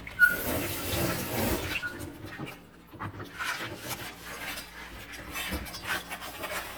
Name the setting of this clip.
kitchen